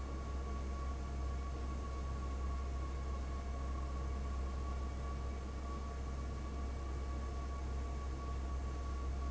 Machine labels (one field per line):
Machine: fan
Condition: abnormal